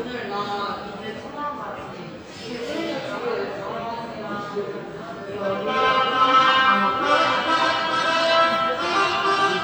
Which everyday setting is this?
subway station